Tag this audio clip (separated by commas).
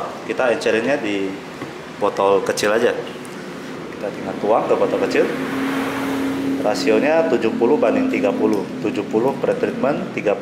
Speech